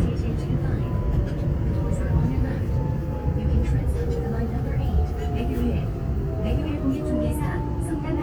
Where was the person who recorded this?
on a subway train